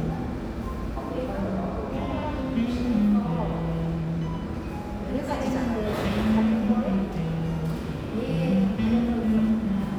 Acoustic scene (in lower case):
cafe